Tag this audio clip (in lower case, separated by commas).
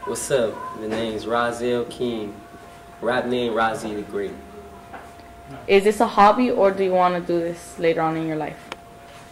music, speech